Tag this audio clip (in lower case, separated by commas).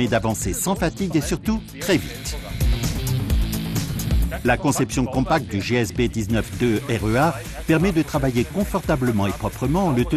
music, speech